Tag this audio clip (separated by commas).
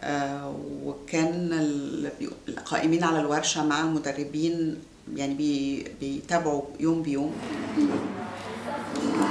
Speech